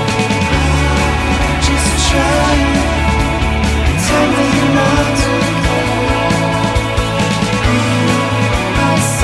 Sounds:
Music

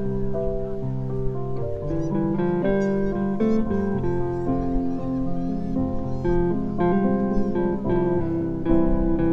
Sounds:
Music

